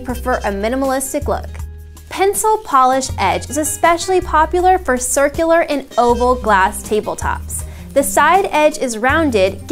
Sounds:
speech, music

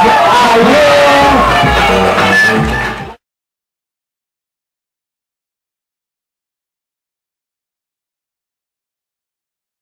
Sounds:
silence, music, speech

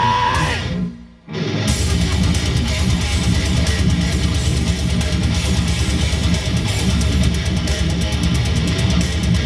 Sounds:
plucked string instrument, musical instrument, electric guitar, music, guitar

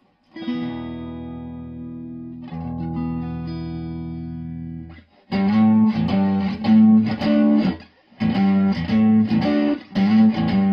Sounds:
musical instrument, inside a small room, plucked string instrument, music, guitar

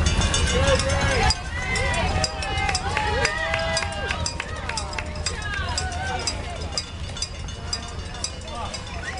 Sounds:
outside, urban or man-made, speech

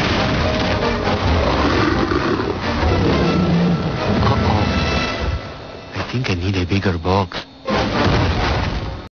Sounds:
music, speech

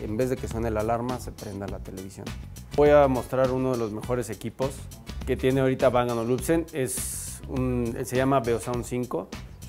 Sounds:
music, speech

